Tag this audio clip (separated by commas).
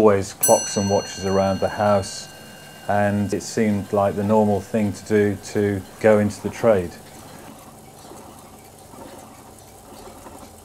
Speech